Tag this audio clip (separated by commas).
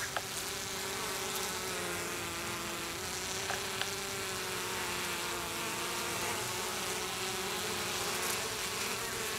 etc. buzzing, Insect, bee or wasp